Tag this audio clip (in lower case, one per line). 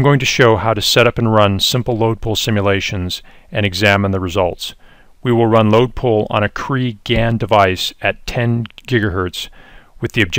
speech